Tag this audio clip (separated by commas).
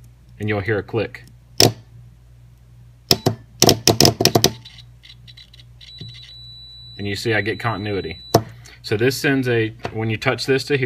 inside a small room, Speech